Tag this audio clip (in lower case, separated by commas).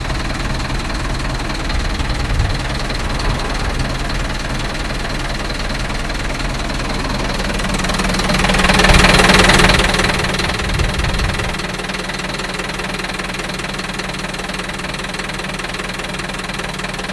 engine